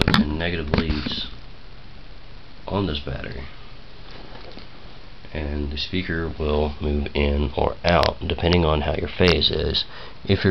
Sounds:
speech

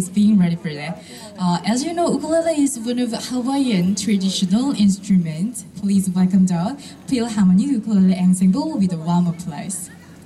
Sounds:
speech

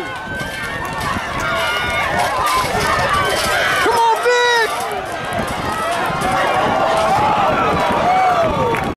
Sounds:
speech, outside, urban or man-made

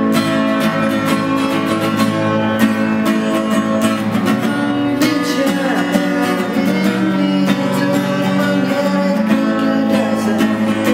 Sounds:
happy music, music

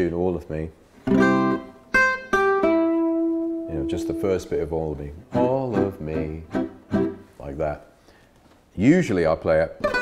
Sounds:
guitar, speech, plucked string instrument, strum, musical instrument, music, acoustic guitar

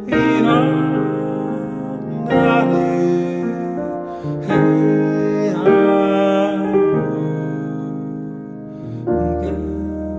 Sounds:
music, mantra

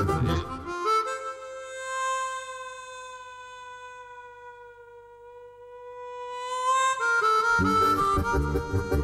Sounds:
playing harmonica

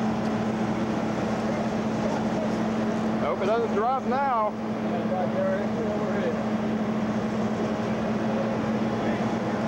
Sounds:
vehicle, speech

